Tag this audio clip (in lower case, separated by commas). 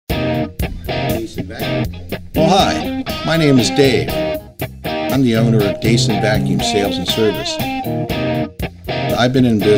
electric guitar